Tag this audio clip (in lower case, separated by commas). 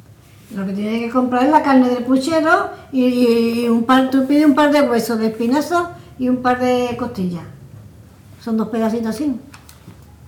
human voice